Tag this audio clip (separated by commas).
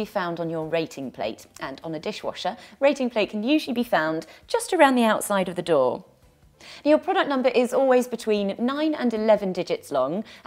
Speech